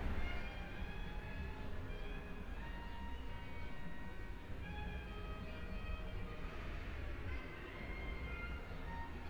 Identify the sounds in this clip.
music from an unclear source